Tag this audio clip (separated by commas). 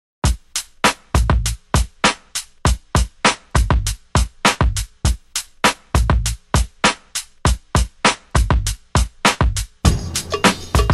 Music